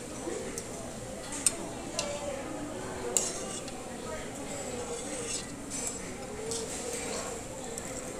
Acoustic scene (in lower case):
restaurant